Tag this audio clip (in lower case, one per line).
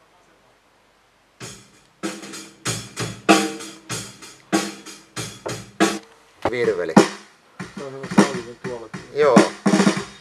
speech
drum kit
drum
music